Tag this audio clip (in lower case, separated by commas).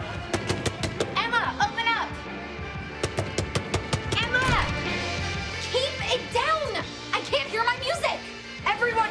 speech, music